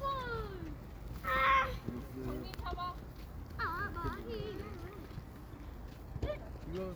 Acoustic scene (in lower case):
park